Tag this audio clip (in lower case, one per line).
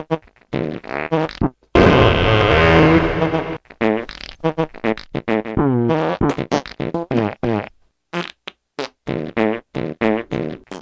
electronic music
music